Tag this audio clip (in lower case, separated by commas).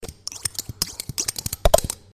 scissors, domestic sounds